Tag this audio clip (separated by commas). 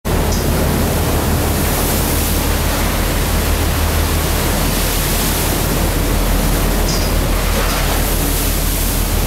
outside, rural or natural, Pink noise